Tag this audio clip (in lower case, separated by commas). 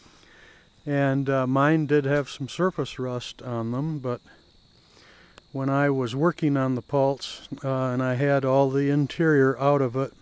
speech